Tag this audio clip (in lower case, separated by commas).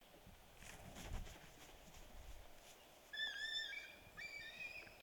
bird, wild animals, animal